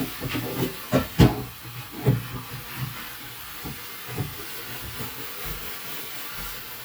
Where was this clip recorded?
in a kitchen